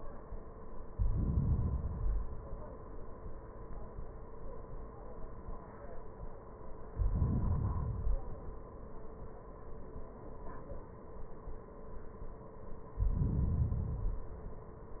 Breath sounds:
Inhalation: 0.88-1.96 s, 6.91-7.94 s, 12.94-13.73 s
Exhalation: 1.96-3.11 s, 7.93-8.96 s, 13.75-15.00 s

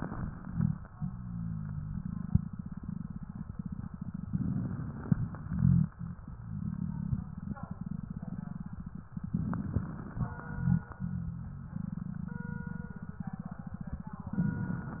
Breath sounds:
Inhalation: 4.27-5.12 s, 9.41-10.21 s
Exhalation: 5.16-5.94 s, 10.26-11.06 s
Rhonchi: 5.43-5.94 s, 10.26-10.91 s

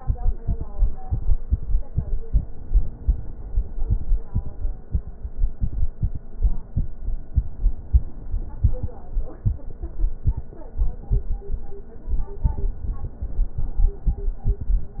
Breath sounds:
Inhalation: 2.59-3.86 s, 7.46-8.73 s

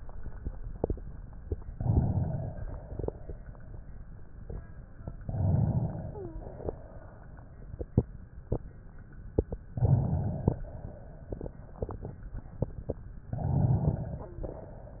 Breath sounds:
Inhalation: 1.71-2.87 s, 5.19-6.38 s, 9.70-10.65 s, 13.28-14.37 s
Exhalation: 2.87-4.02 s, 6.37-7.42 s, 10.68-11.63 s
Wheeze: 6.07-6.51 s, 14.21-14.65 s

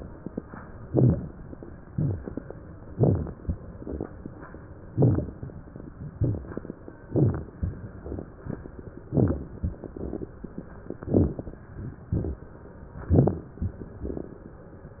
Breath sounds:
Inhalation: 0.86-1.43 s, 2.94-3.34 s, 4.96-5.46 s, 7.07-7.55 s, 9.18-9.52 s, 11.04-11.62 s, 13.00-13.55 s
Exhalation: 1.91-2.48 s, 3.79-4.30 s, 6.20-6.76 s, 12.15-12.46 s
Rhonchi: 0.90-1.17 s, 2.96-3.24 s, 4.96-5.27 s, 13.09-13.38 s
Crackles: 1.91-2.48 s, 2.94-3.34 s, 3.79-4.30 s, 6.20-6.76 s, 11.04-11.62 s, 12.97-13.51 s

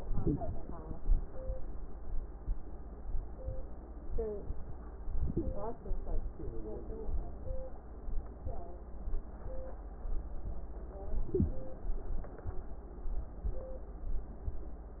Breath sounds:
Inhalation: 0.00-0.57 s, 5.12-5.80 s, 11.11-11.71 s

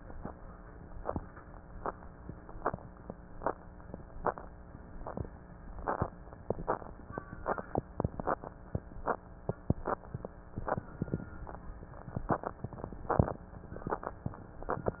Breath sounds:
Inhalation: 10.81-12.24 s

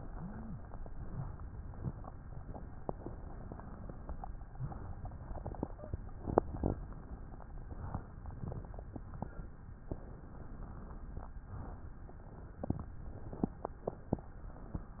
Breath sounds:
Inhalation: 0.00-0.59 s, 4.40-5.06 s, 7.54-8.28 s, 11.38-12.12 s
Exhalation: 5.13-6.93 s
Wheeze: 0.00-0.59 s, 5.63-6.14 s

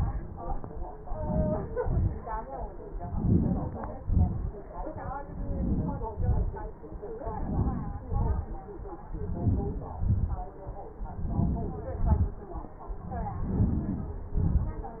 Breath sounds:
Inhalation: 1.17-1.72 s, 3.10-3.71 s, 5.42-6.06 s, 7.37-8.01 s, 9.28-9.96 s, 11.25-11.93 s, 13.53-14.20 s
Exhalation: 1.83-2.25 s, 4.12-4.51 s, 6.15-6.57 s, 8.17-8.61 s, 10.08-10.54 s, 12.09-12.46 s, 14.38-15.00 s

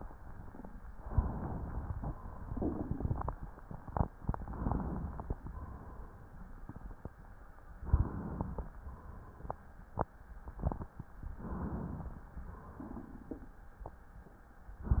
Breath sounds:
Inhalation: 0.93-1.99 s, 4.28-5.38 s, 7.84-8.72 s, 11.37-12.35 s
Exhalation: 2.17-3.62 s, 5.38-7.12 s, 8.72-9.82 s, 12.35-13.66 s
Crackles: 2.17-3.62 s, 4.28-5.38 s, 7.84-8.72 s

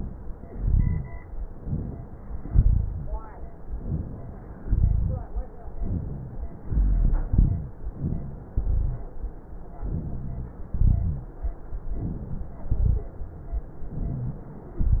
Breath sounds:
Inhalation: 1.61-2.41 s, 3.76-4.55 s, 5.83-6.62 s, 7.97-8.56 s, 9.87-10.63 s, 11.99-12.64 s, 13.89-14.78 s
Exhalation: 0.47-1.18 s, 2.47-3.15 s, 4.55-5.24 s, 6.60-7.29 s, 8.56-9.15 s, 10.72-11.37 s, 12.73-13.15 s
Wheeze: 13.89-14.78 s
Rhonchi: 0.47-1.18 s, 2.47-3.15 s, 4.55-5.24 s, 6.60-7.29 s, 8.56-9.15 s, 9.87-10.63 s, 10.72-11.37 s, 12.73-13.15 s

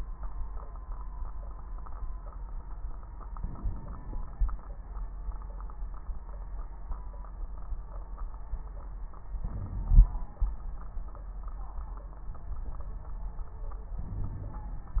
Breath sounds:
Inhalation: 3.37-4.43 s, 9.41-10.27 s, 14.06-15.00 s
Wheeze: 14.12-14.64 s
Crackles: 3.37-4.43 s, 9.41-10.27 s

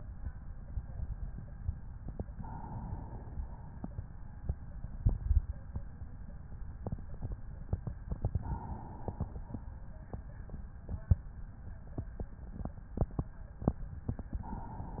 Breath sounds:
Inhalation: 2.31-3.32 s, 8.07-9.34 s, 14.24-15.00 s
Exhalation: 3.32-4.09 s, 9.34-10.08 s

